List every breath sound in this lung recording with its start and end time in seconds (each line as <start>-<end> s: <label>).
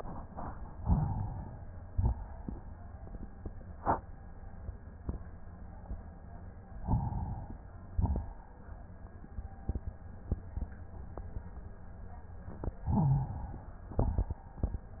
0.74-1.90 s: inhalation
1.90-2.94 s: exhalation
6.81-7.95 s: inhalation
7.95-8.88 s: exhalation
12.90-13.98 s: inhalation
13.98-14.97 s: exhalation